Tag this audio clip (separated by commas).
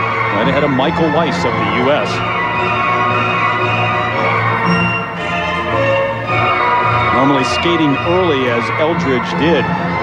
Speech, inside a large room or hall, Music